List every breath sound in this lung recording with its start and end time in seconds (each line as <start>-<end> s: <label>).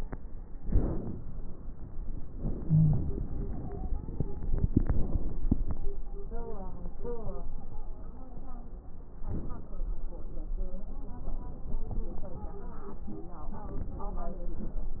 0.50-1.53 s: inhalation
2.39-3.18 s: inhalation
2.66-3.18 s: wheeze
3.39-4.71 s: stridor
4.59-5.48 s: inhalation
4.59-5.48 s: crackles
7.50-8.69 s: stridor
9.23-9.96 s: inhalation
12.30-13.80 s: stridor